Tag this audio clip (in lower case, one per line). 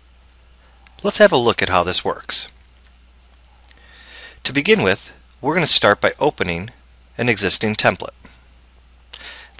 speech